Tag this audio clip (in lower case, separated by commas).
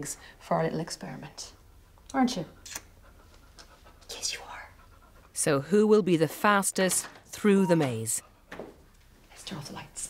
speech, pant